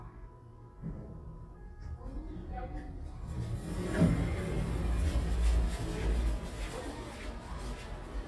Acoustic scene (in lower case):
elevator